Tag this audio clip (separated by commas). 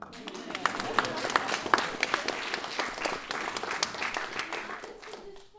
Applause, Human group actions